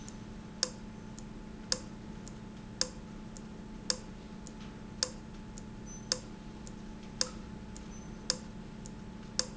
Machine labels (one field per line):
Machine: valve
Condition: abnormal